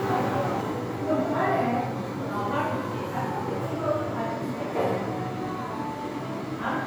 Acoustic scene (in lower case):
crowded indoor space